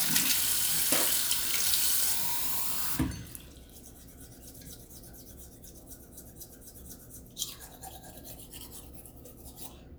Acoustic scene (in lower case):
restroom